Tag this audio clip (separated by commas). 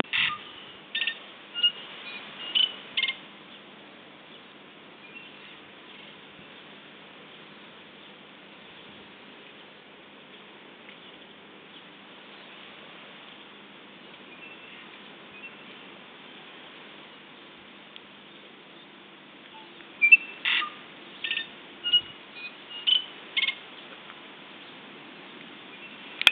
Bird, Bird vocalization, Animal, Wild animals